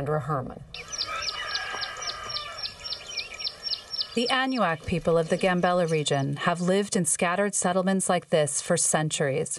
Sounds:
Speech

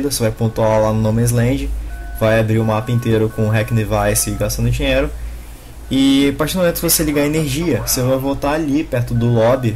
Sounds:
Speech

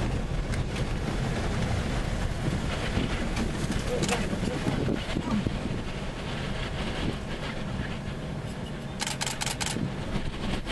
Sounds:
Speech

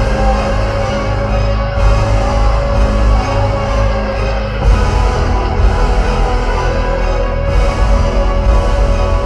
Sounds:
Music

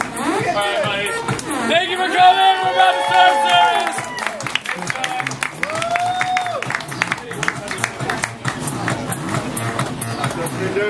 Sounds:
Speech, Music

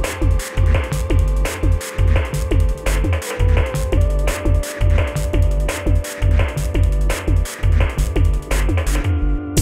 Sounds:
Music

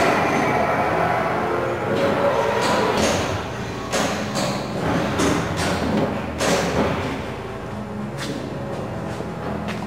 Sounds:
Music

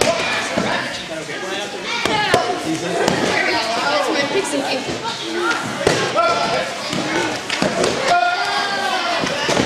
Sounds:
Speech

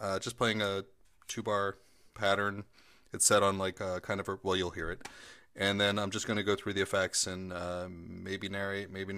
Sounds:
Speech

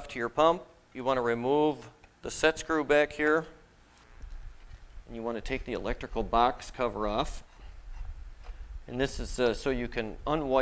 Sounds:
Speech

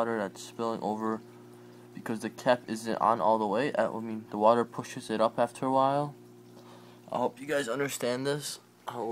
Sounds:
Speech, inside a small room

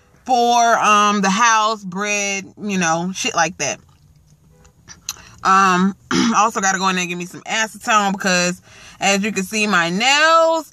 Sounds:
Speech

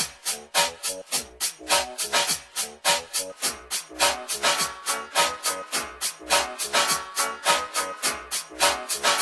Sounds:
House music, Music

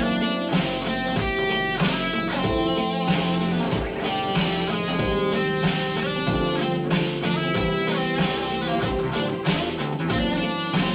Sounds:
Acoustic guitar, Guitar, Plucked string instrument, Musical instrument, Music, Strum, Electric guitar

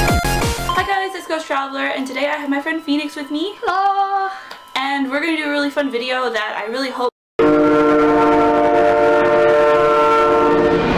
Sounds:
Speech, inside a small room, Music

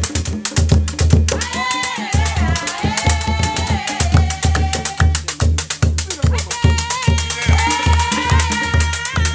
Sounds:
Female singing, Music

